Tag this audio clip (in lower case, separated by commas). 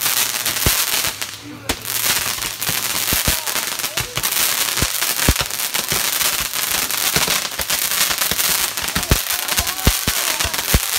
lighting firecrackers